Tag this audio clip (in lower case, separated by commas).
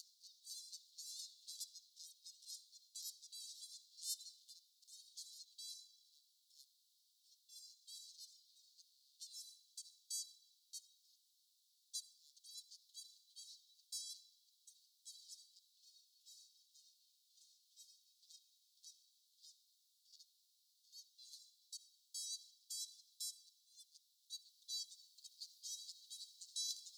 animal, livestock, fowl